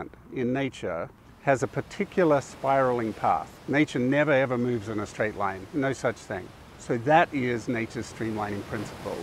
A man speaks, waves crash on a shore